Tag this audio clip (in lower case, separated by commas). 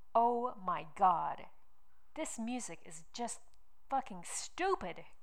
speech, human voice, woman speaking